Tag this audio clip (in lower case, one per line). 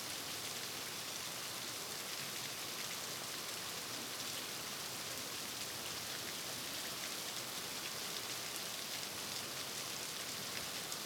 rain
water